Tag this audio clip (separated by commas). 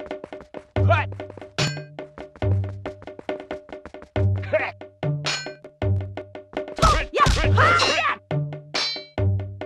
Speech, Music